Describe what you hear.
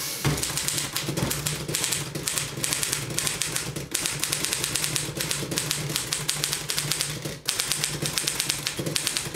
Someone types really fast on an old typewriter and the handle rings at the end of a line of type and the bar is pushed to the beginning